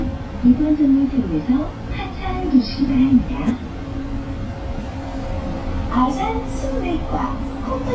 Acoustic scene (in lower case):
bus